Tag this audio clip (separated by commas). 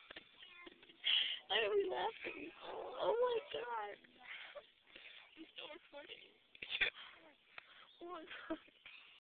Speech